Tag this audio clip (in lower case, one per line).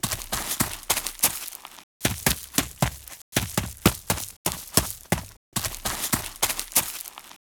run